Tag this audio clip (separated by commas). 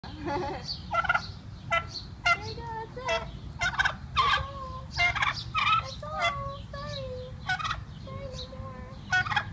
turkey gobbling, Fowl, Gobble, Turkey